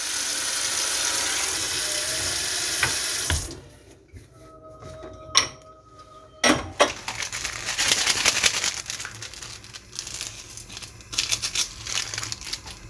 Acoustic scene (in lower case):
kitchen